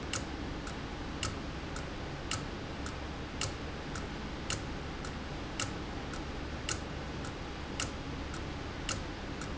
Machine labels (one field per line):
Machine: valve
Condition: abnormal